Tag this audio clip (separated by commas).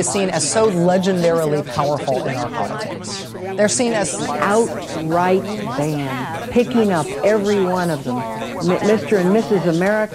Speech